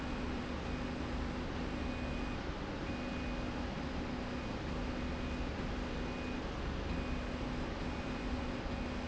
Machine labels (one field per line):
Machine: slide rail